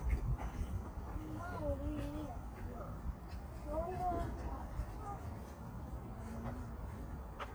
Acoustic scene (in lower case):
park